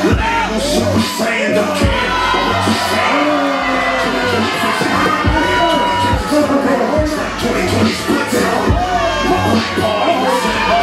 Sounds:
Music, inside a public space

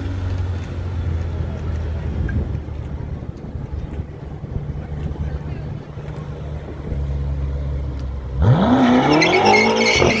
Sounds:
skidding

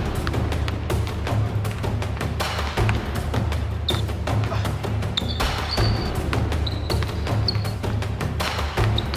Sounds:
Music, Speech, Basketball bounce

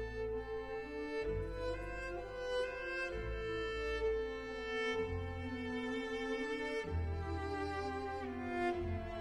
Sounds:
Music, Cello, Musical instrument

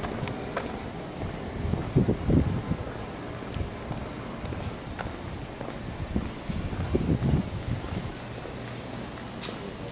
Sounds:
Walk

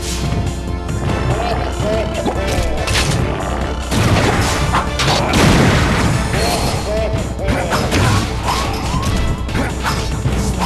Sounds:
Music

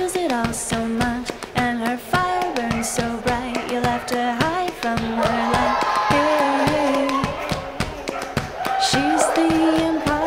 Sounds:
Music, Bow-wow

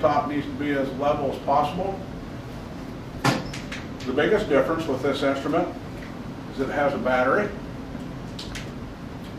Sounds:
Speech

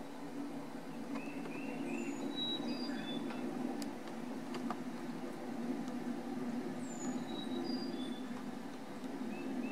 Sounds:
black capped chickadee calling

